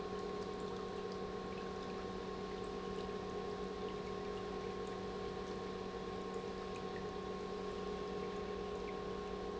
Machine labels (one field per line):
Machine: pump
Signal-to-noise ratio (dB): 6 dB